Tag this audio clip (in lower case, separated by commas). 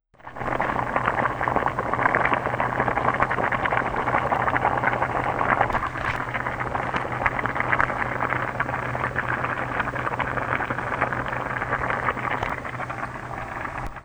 boiling, liquid